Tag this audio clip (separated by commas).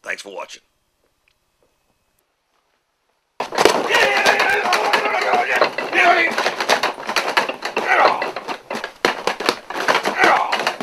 Speech